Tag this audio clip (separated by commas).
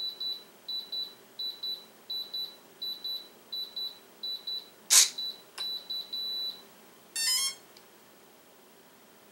inside a small room, Beep